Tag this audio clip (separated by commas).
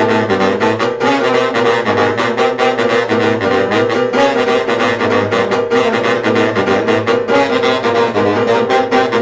Musical instrument, Piano, Jazz, Music, Saxophone